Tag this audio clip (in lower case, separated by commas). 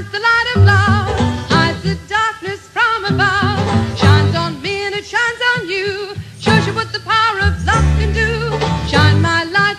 music, radio